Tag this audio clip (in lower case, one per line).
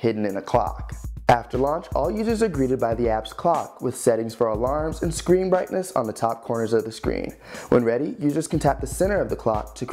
speech
music